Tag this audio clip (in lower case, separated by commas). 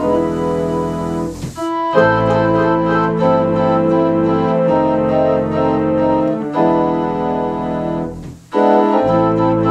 piano, organ, music, musical instrument, keyboard (musical), electronic organ